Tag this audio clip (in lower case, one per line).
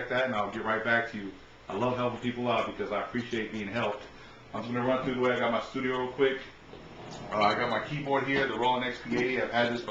speech